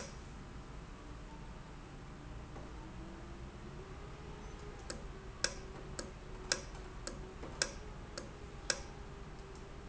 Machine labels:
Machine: valve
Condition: normal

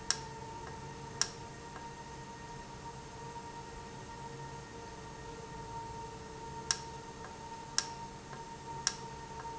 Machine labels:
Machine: valve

